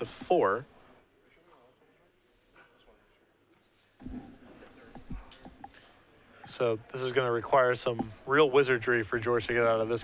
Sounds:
Speech

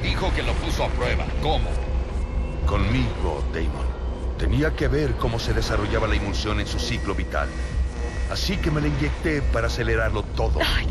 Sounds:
Speech, Music

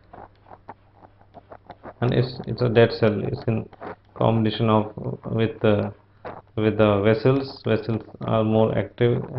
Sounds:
Speech, inside a small room

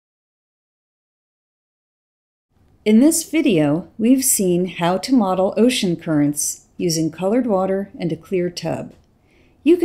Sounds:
Speech

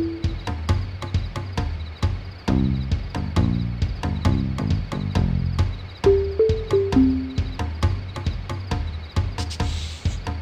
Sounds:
Rhythm and blues, Music, Soundtrack music

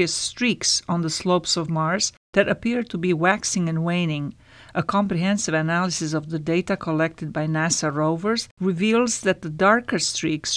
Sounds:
Speech

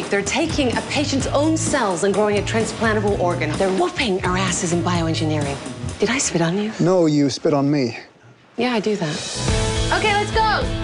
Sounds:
Music, Speech

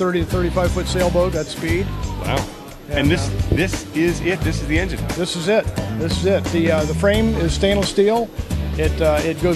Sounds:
Speech, Music

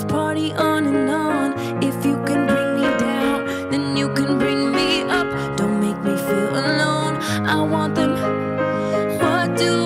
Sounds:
Music

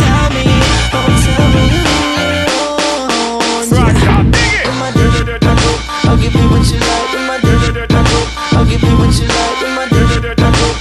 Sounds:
Music

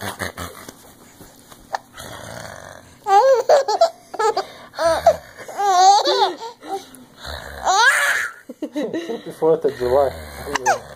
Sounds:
people belly laughing, Laughter, Speech, inside a small room, Belly laugh

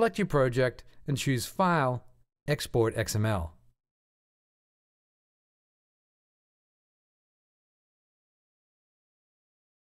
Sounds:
Speech

